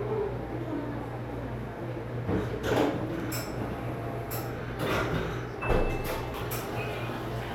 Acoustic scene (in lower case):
cafe